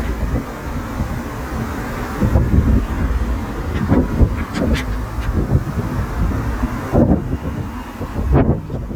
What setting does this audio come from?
street